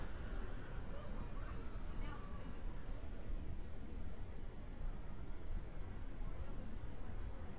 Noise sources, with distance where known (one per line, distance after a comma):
person or small group talking, far